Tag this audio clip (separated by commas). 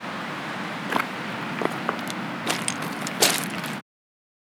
surf, Wind, Ocean, Water